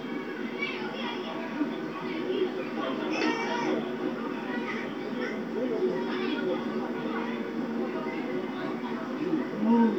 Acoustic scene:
park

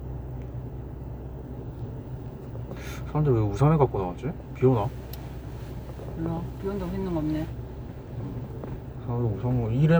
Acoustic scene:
car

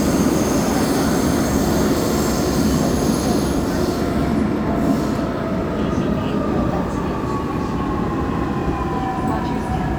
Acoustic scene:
subway train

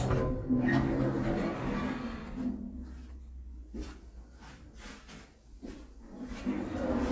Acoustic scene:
elevator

